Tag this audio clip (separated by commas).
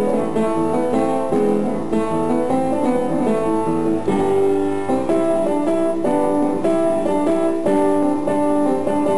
Music